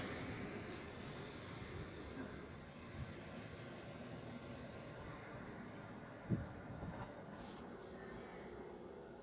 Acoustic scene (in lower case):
residential area